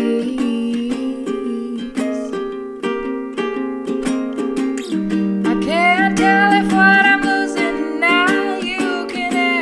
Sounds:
music
singing
ukulele

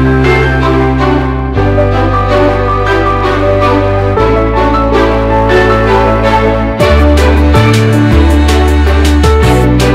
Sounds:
music

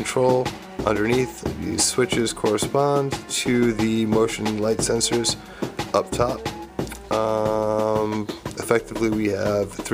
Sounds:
music
speech

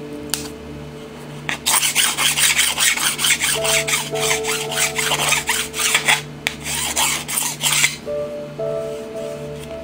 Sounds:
filing (rasp)
rub

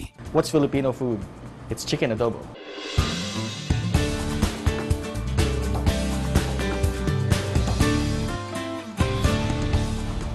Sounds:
speech
music

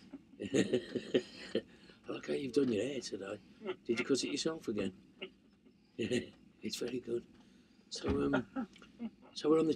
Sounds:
speech

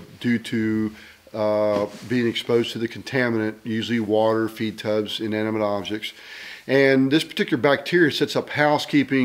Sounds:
speech

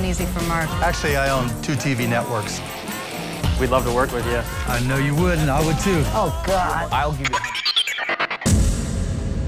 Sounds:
music
speech

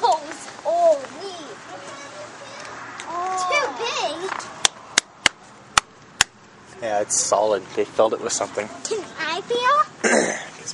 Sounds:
speech

